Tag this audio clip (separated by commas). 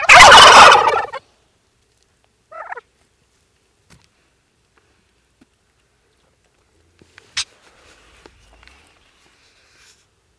turkey gobbling